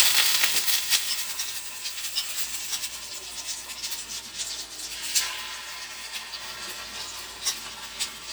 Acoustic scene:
kitchen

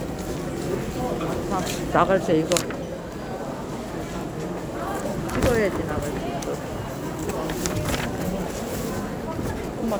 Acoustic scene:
crowded indoor space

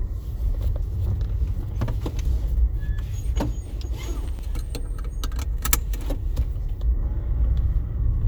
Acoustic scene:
car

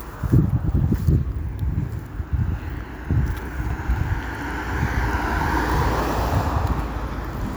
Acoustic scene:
street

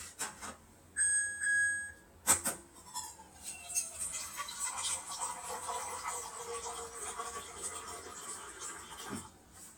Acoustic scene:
kitchen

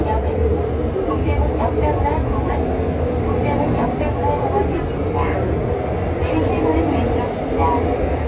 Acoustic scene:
subway train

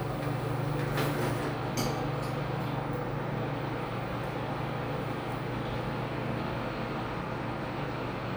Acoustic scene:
elevator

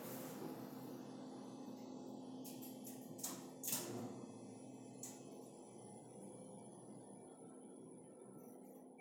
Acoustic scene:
elevator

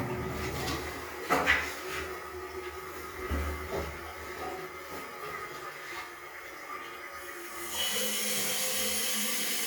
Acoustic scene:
restroom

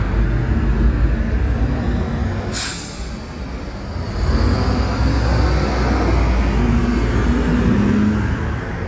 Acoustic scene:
street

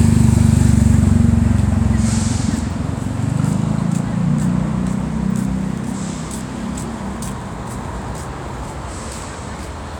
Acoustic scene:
street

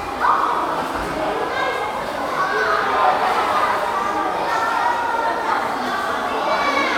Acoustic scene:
crowded indoor space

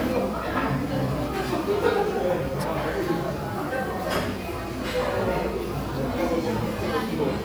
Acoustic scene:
crowded indoor space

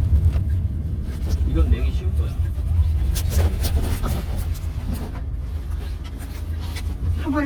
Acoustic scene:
car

